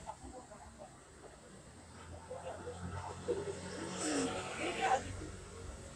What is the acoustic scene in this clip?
street